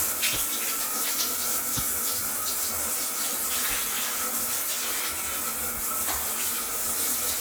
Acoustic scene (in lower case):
restroom